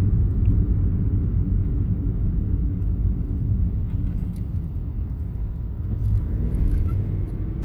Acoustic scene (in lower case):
car